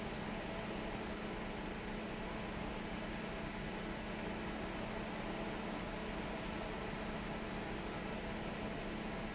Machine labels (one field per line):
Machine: fan